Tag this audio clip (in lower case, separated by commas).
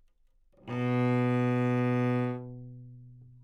musical instrument, music, bowed string instrument